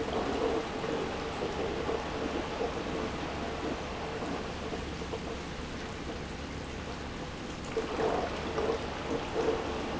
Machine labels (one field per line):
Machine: pump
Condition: abnormal